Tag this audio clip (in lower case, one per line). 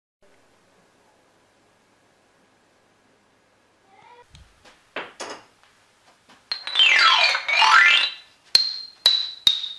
xylophone
mallet percussion
glockenspiel